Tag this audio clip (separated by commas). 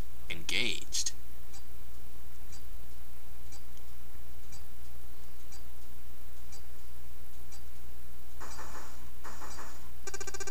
monologue